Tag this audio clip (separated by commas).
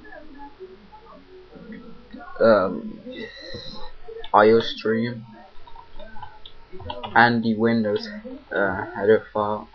Speech